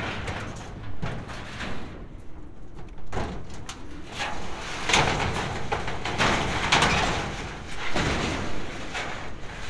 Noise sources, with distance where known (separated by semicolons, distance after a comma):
unidentified impact machinery, near